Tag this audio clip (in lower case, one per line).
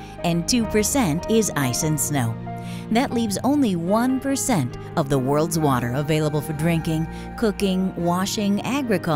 music
speech